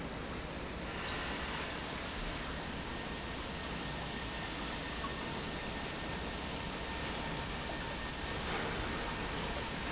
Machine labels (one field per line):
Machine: pump